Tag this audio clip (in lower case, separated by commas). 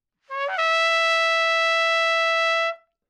musical instrument, brass instrument, music, trumpet